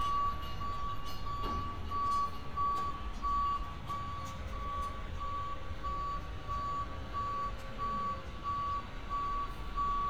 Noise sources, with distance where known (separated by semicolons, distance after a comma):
reverse beeper, near